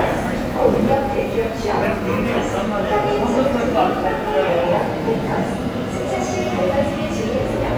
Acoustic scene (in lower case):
subway station